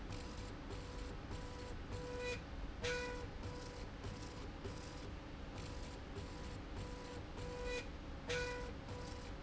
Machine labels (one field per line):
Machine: slide rail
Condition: normal